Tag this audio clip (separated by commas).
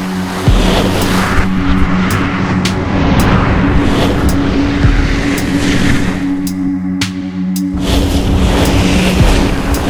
skiing